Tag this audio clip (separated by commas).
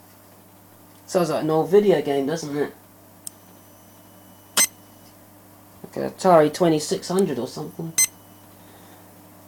Speech